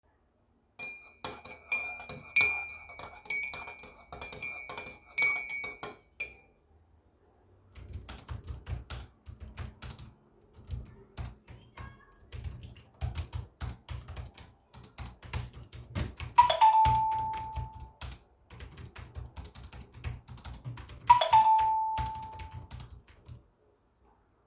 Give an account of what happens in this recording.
I stirred the tea in a mug with a spoon. Then I started typing on the keyboard. while typing, I received two phone notification.